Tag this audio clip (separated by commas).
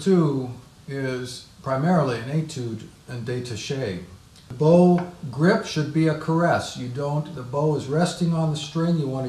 Speech